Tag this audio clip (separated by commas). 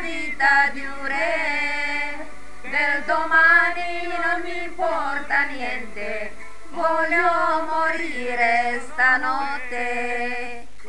Singing